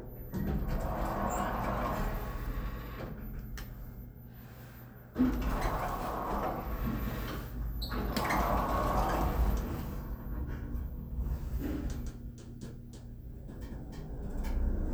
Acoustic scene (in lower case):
elevator